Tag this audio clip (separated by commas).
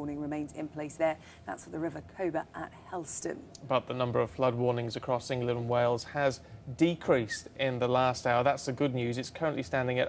Speech